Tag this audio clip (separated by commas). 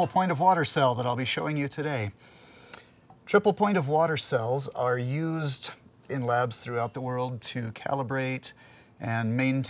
Speech